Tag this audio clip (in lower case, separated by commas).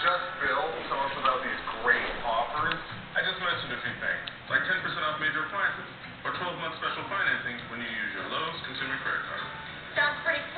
speech